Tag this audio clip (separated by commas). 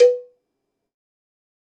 Cowbell, Bell